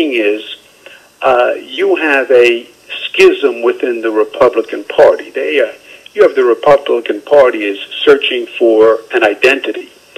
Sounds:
speech

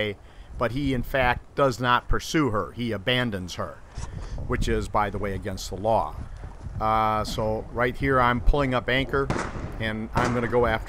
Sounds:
speech

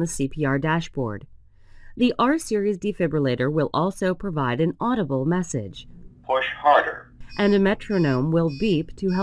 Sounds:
narration

